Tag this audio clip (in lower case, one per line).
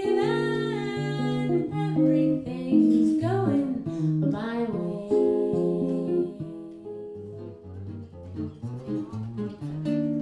guitar
music
acoustic guitar
musical instrument
plucked string instrument
singing